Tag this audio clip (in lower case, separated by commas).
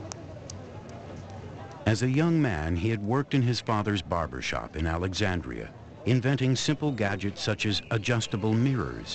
speech